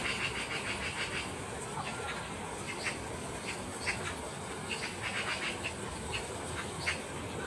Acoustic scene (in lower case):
park